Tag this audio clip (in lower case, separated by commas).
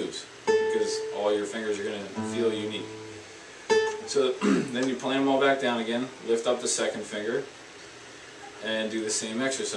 speech, acoustic guitar, guitar, musical instrument, plucked string instrument, music